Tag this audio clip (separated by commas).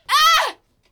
Screaming, Human voice